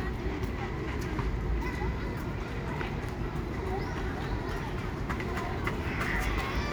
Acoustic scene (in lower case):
residential area